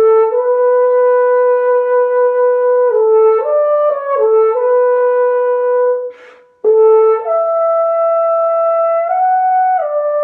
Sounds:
playing french horn

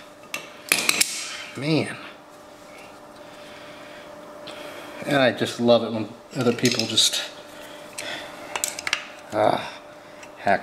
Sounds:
Speech, inside a small room, Engine

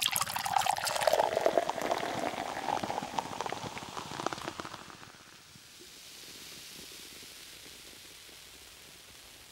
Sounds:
Pour

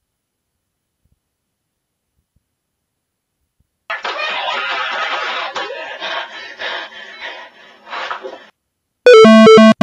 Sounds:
Electronic music, Music

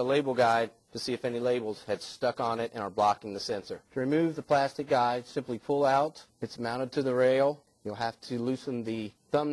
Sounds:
Speech

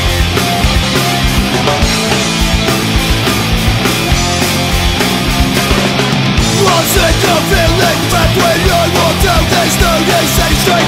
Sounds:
Music

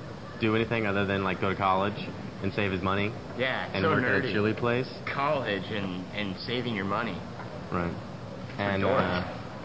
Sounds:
Speech

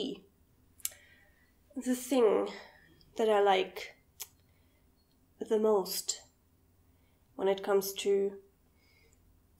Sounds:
inside a small room, Speech

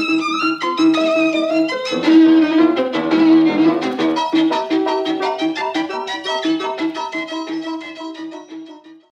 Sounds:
Musical instrument, Violin, Music

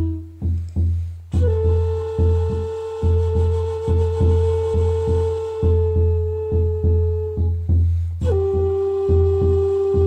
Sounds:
Traditional music, Music

